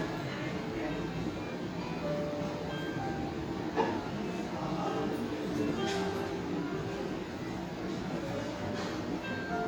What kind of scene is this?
cafe